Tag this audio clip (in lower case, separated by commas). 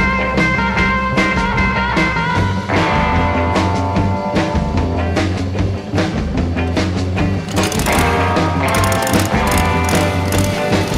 music